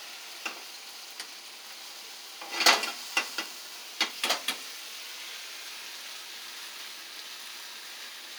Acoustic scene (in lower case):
kitchen